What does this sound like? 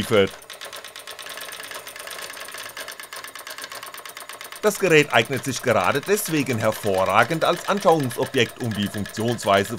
A man speaking while a sewing machine operates